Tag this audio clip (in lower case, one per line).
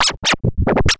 scratching (performance technique)
music
musical instrument